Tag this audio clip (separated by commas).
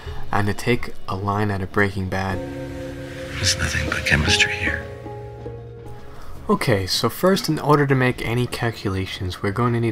Speech, Music